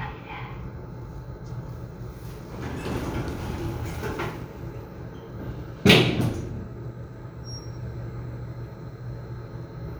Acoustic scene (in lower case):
elevator